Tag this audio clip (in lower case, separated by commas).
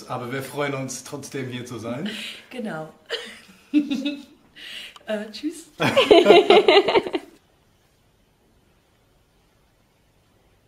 speech, snicker